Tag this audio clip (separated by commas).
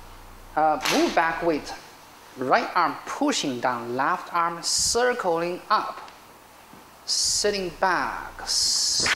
Speech